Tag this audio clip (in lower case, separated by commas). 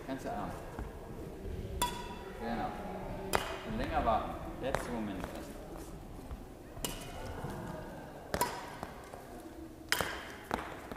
playing badminton